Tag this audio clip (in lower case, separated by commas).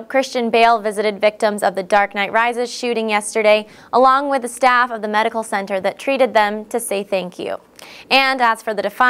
speech